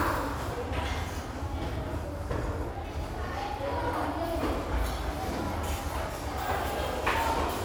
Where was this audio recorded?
in a restaurant